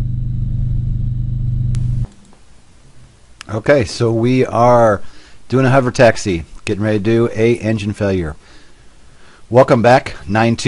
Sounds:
Speech, Vehicle

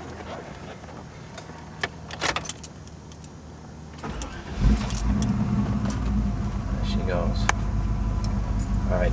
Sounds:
Speech, Vehicle

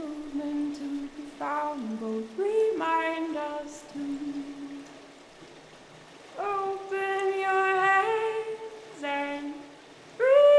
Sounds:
Stream

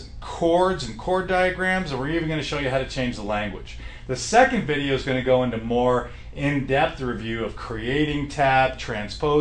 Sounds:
Speech

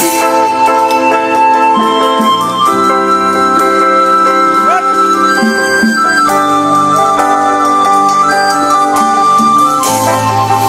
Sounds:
Independent music, Music, Speech

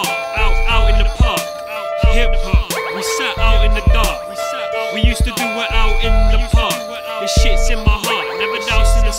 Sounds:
Music

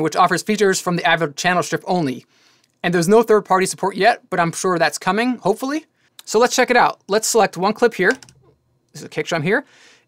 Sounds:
Speech

